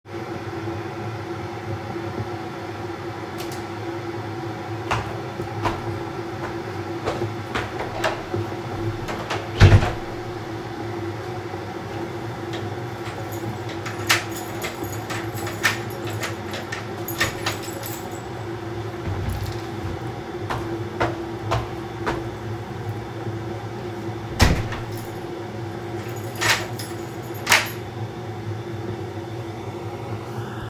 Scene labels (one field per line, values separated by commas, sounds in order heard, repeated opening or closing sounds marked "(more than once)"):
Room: hallway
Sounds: light switch, footsteps, door (more than once), keys